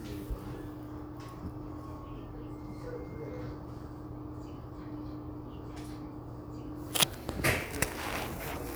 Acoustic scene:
crowded indoor space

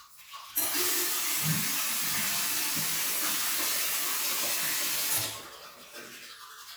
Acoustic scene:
restroom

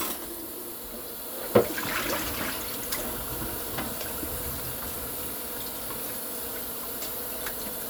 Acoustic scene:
kitchen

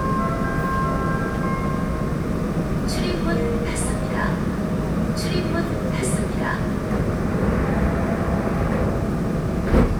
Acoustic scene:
subway train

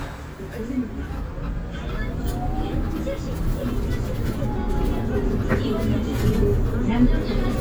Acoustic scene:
bus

